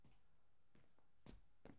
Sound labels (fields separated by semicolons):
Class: footsteps; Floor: tiled floor